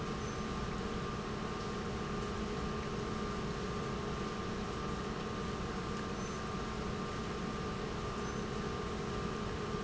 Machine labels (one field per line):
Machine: pump